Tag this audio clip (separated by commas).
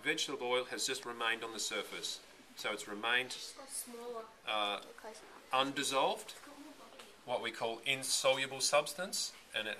Speech, inside a small room